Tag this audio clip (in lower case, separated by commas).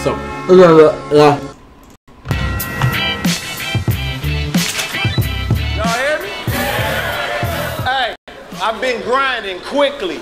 speech, music